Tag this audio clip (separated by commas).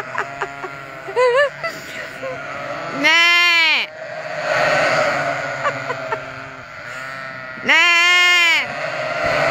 sheep bleating